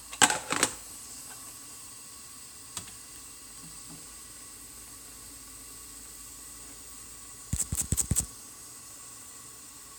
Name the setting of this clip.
kitchen